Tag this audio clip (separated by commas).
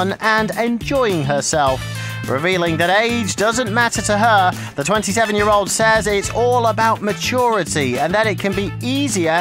Speech, Music